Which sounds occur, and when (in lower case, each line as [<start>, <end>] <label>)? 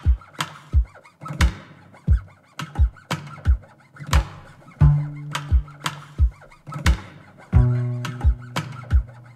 [0.00, 9.35] music